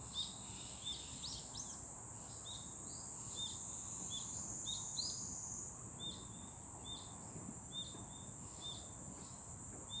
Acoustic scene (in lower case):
park